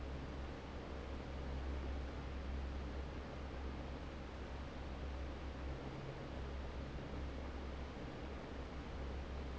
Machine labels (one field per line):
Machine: fan